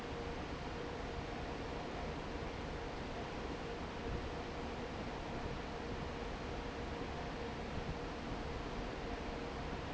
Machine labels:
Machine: fan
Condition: normal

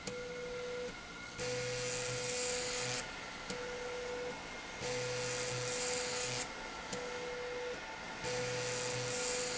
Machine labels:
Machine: slide rail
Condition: abnormal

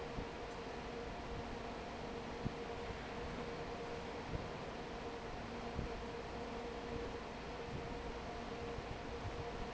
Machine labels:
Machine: fan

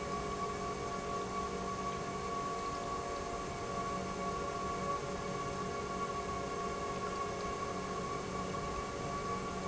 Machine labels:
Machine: pump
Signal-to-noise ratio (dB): -6 dB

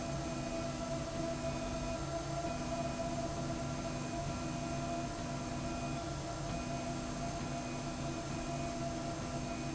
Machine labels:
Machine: slide rail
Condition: normal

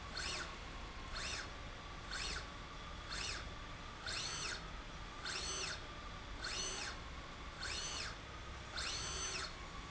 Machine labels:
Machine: slide rail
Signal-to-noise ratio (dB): 6 dB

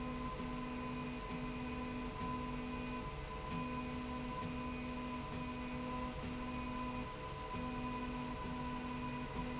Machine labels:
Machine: slide rail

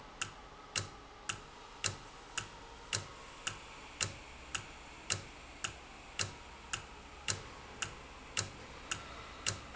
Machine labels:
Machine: valve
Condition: normal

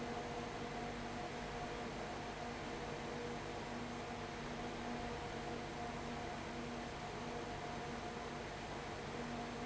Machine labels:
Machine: fan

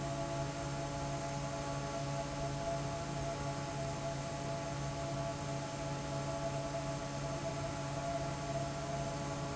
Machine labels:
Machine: fan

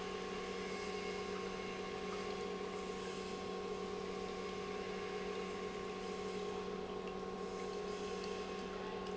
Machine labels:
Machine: pump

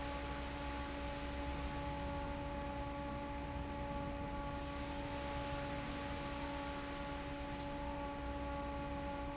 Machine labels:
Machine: fan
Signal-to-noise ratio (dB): 0 dB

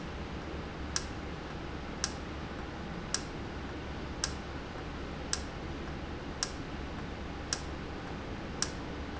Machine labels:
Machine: valve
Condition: normal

